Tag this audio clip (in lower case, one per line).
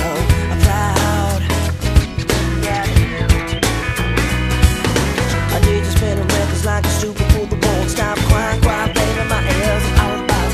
music